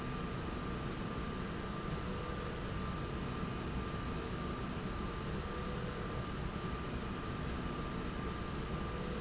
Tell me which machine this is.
slide rail